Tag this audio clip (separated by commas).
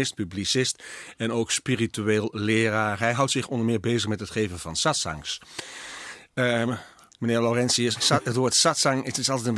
Speech